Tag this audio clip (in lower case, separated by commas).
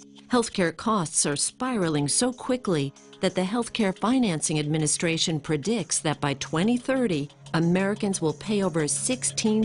music, speech